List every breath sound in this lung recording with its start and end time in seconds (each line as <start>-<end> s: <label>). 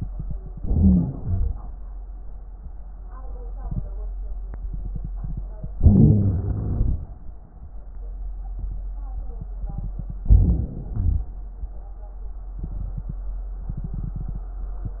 0.53-1.03 s: crackles
0.53-1.05 s: inhalation
1.09-1.61 s: exhalation
1.09-1.63 s: crackles
5.68-6.97 s: crackles
5.72-7.01 s: inhalation
10.26-10.96 s: crackles
10.28-10.96 s: inhalation
10.95-11.36 s: exhalation